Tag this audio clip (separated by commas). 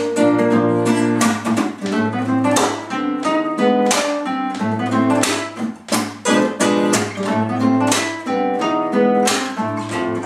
Plucked string instrument, Strum, Musical instrument, Acoustic guitar, Music, Guitar